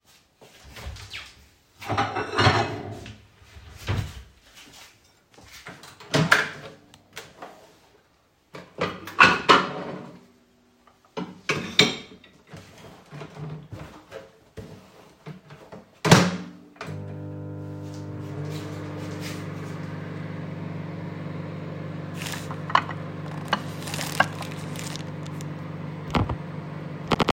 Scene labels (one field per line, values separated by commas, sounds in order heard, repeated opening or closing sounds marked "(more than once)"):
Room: kitchen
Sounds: cutlery and dishes, wardrobe or drawer, footsteps, microwave